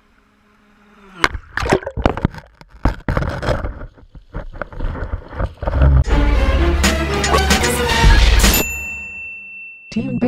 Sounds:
music
speech

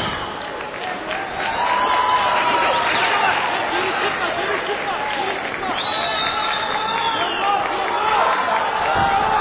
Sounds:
speech

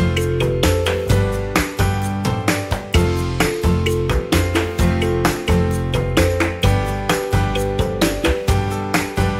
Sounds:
music

